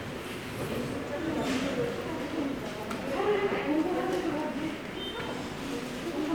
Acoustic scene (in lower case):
subway station